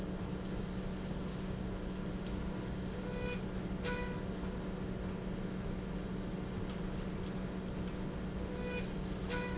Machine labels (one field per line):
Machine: slide rail